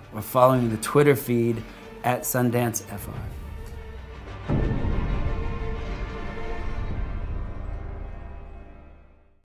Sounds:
Speech, Music

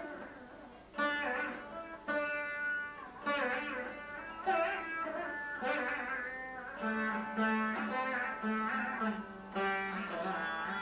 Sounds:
Musical instrument, Plucked string instrument, Music

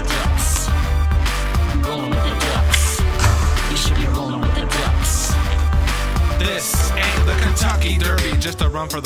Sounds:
Music

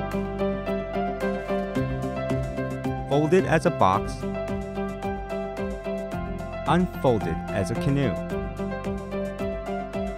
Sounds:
Music, Speech

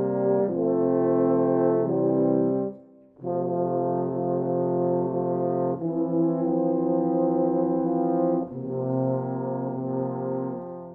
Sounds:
Music, French horn, playing french horn

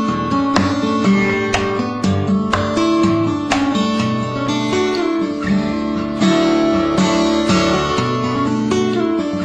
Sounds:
Strum, Music, Plucked string instrument, Guitar, Musical instrument

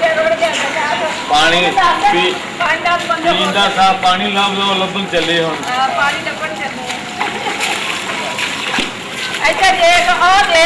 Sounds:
Speech

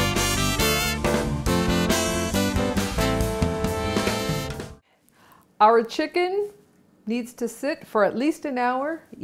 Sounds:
Speech, Music

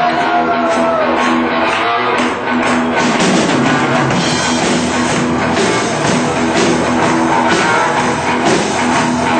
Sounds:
Blues, Music

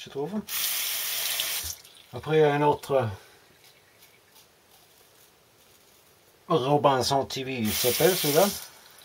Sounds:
Speech

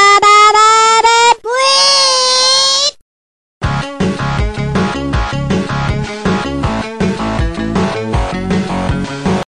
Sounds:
Music

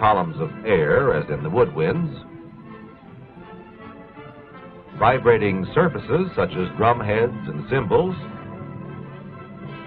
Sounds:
Speech, Music

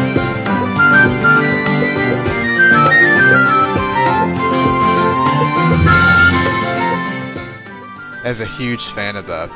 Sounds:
Music, Speech

